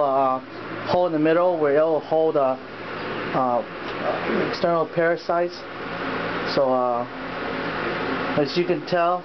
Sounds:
Speech

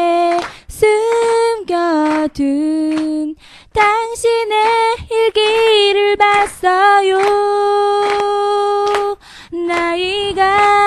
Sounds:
Female singing

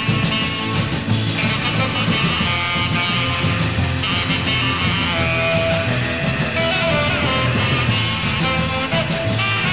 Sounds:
Psychedelic rock, Music

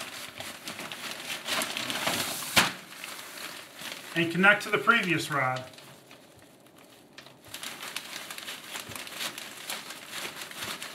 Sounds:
Speech

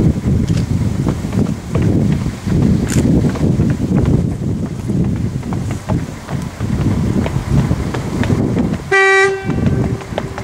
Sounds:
Toot

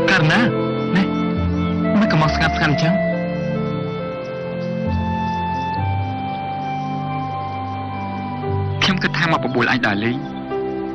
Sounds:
Music, Speech

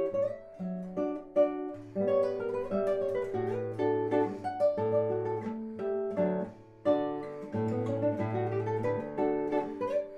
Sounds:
Plucked string instrument, Guitar, Acoustic guitar, Music, Musical instrument

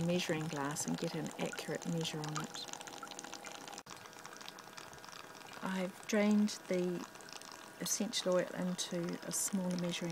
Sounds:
Speech

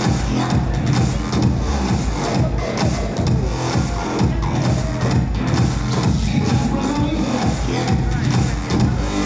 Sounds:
Speech, Music

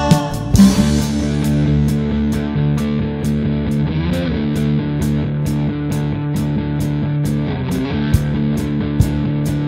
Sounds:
Rock music, Progressive rock, Electric guitar, Music

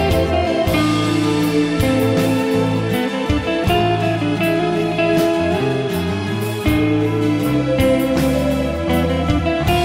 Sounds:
Musical instrument, Steel guitar, Music

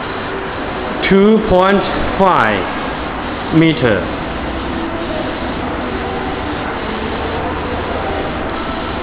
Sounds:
Speech, Printer

